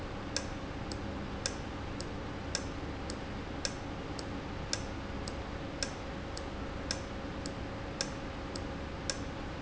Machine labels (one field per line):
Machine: valve